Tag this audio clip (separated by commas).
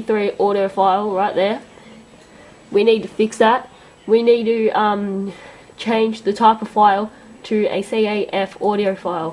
Speech